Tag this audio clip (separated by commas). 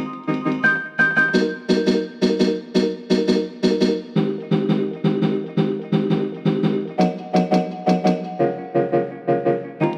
Music